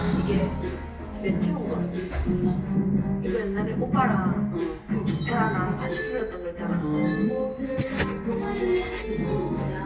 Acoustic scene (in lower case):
cafe